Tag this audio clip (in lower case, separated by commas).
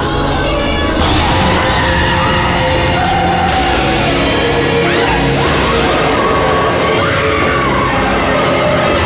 speech, music